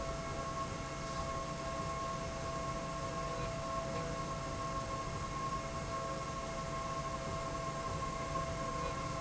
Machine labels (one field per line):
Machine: slide rail